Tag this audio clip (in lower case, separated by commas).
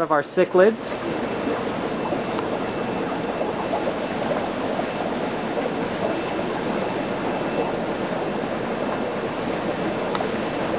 speech